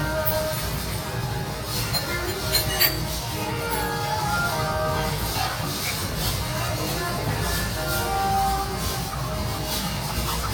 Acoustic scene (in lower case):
restaurant